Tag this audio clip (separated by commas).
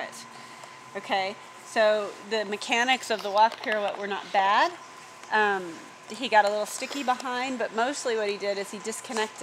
Walk, Speech